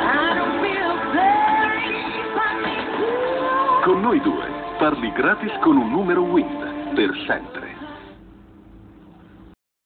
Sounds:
speech, music

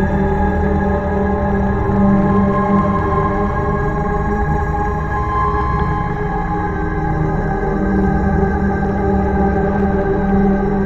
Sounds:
music, ambient music, electronic music

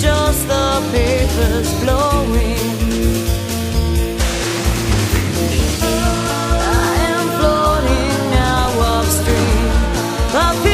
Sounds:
music

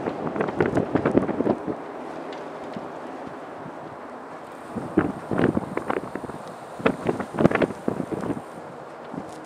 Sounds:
wind noise (microphone), wind

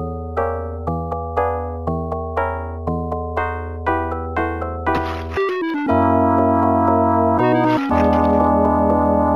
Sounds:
music, sound effect

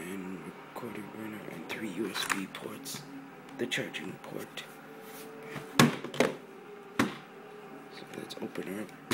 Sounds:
speech

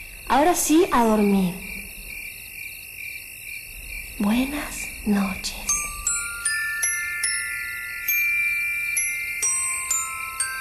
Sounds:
music, speech

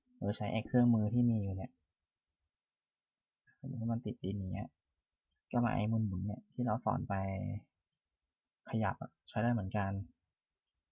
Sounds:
speech

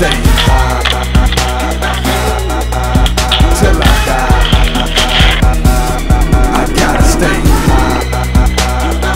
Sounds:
music, speech, skateboard

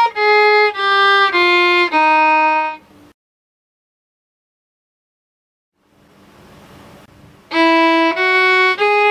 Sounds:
music, musical instrument, fiddle

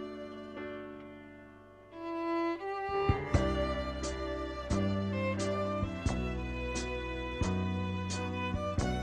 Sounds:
musical instrument, fiddle, music

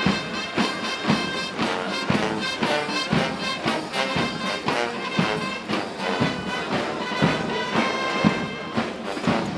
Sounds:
people marching

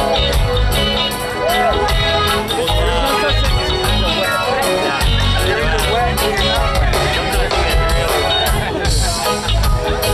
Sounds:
speech, music

